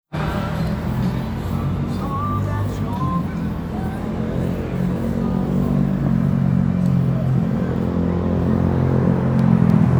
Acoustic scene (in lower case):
street